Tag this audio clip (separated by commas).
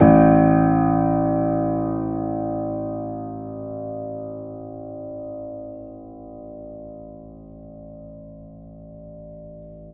Piano, Keyboard (musical), Musical instrument, Music